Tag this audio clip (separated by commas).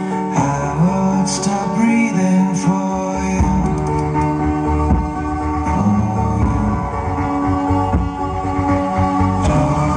inside a large room or hall, Music